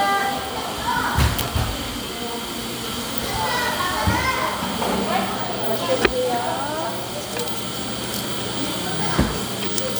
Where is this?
in a cafe